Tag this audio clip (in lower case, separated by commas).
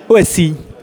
human voice, speech